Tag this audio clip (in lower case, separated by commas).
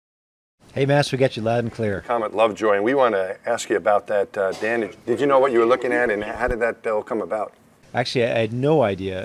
speech